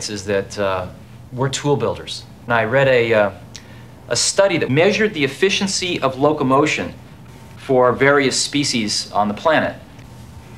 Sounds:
speech

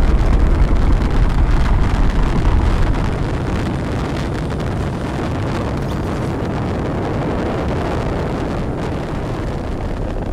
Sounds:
missile launch

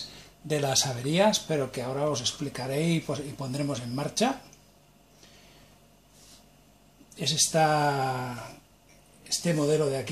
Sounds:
speech

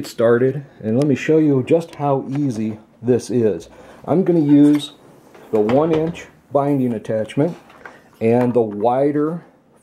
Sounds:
speech

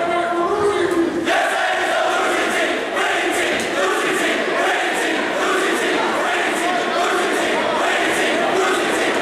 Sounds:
chant

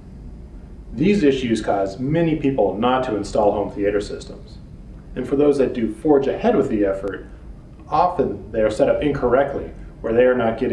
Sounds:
speech

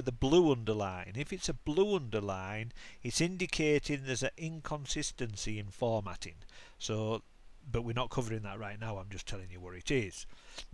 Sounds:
speech

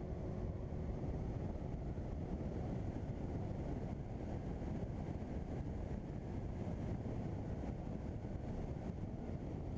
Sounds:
speech

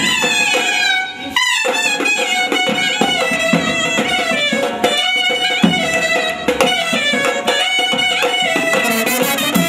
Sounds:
brass instrument
inside a large room or hall
music

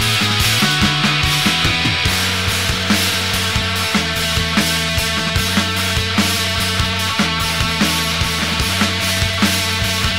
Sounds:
bass drum
playing bass drum
music

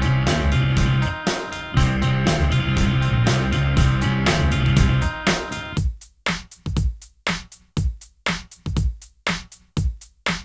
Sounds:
music

